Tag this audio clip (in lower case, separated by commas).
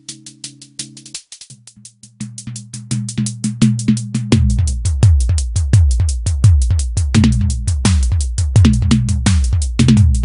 percussion, bass drum, rimshot, drum, drum kit, snare drum